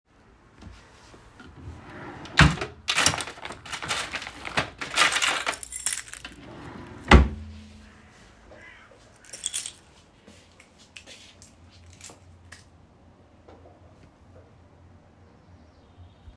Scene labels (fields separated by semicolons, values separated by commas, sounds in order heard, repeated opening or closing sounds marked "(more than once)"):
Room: living room; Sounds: wardrobe or drawer (more than once), door (more than once), keys, footsteps